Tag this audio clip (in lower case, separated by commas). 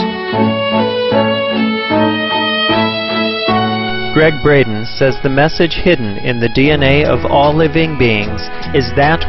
music, bowed string instrument, fiddle, speech